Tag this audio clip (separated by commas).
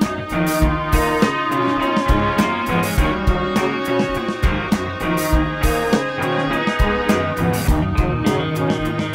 Music